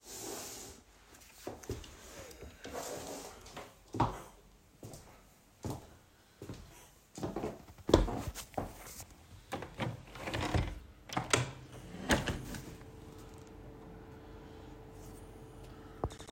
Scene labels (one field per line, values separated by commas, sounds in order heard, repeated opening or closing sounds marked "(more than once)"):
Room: bedroom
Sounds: footsteps, window